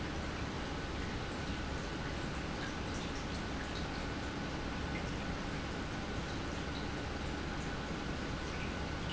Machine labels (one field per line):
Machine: pump